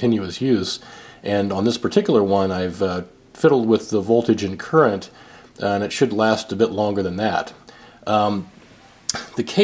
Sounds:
Speech

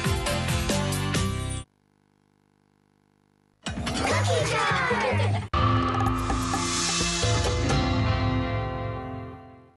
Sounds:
Music, Speech

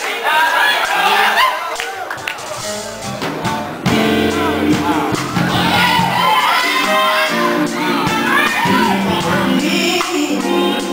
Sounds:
Music, Male singing, Speech

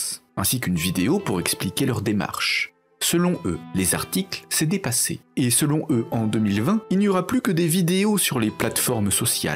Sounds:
Music, Speech

